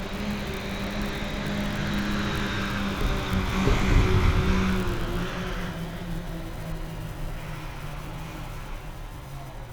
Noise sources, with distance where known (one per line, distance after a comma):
engine of unclear size, near